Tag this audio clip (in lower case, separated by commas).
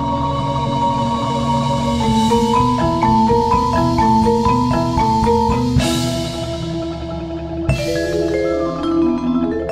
playing vibraphone